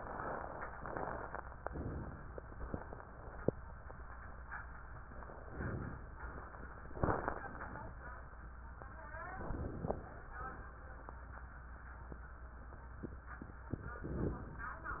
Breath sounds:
Inhalation: 1.65-2.35 s, 5.50-6.21 s, 9.35-10.34 s, 14.04-14.78 s

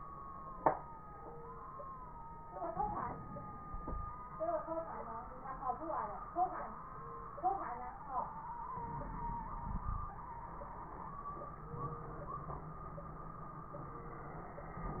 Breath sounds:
Inhalation: 2.72-4.22 s, 8.80-10.18 s
Crackles: 2.72-4.22 s, 8.80-10.18 s

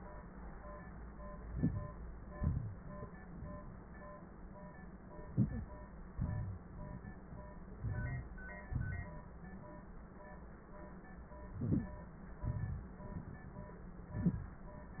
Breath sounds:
Inhalation: 1.42-1.88 s, 5.28-5.73 s, 7.84-8.29 s, 11.54-11.99 s
Exhalation: 2.35-2.81 s, 6.15-6.60 s, 8.65-9.11 s, 12.43-12.90 s

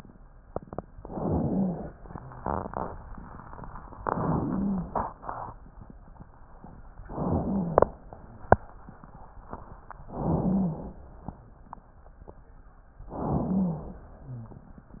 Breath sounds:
Inhalation: 0.97-1.92 s, 3.98-4.93 s, 7.04-7.99 s, 10.07-11.03 s, 13.09-14.04 s
Rhonchi: 0.97-1.92 s, 3.98-4.93 s, 7.04-7.99 s, 10.07-11.03 s, 13.09-14.04 s

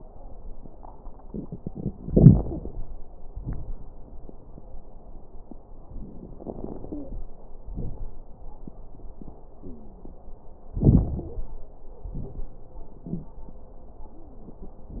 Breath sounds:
Inhalation: 2.10-2.73 s, 6.45-7.25 s, 10.75-11.56 s
Exhalation: 3.32-3.73 s, 7.63-8.21 s, 12.05-12.60 s
Crackles: 2.10-2.73 s, 3.32-3.73 s, 6.45-7.25 s, 7.63-8.21 s, 10.75-11.56 s, 12.05-12.60 s

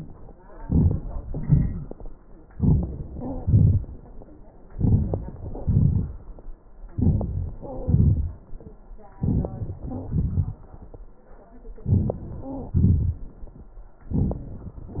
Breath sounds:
Inhalation: 0.59-0.97 s, 2.54-2.93 s, 4.70-5.25 s, 6.95-7.30 s, 9.21-9.55 s, 11.87-12.22 s
Exhalation: 1.32-1.98 s, 3.43-3.85 s, 5.62-6.11 s, 7.84-8.22 s, 10.10-10.65 s, 12.78-13.26 s
Wheeze: 3.12-3.46 s
Stridor: 7.58-7.97 s, 9.81-10.16 s, 12.37-12.84 s

